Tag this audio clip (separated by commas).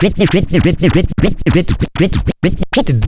Music, Musical instrument, Scratching (performance technique)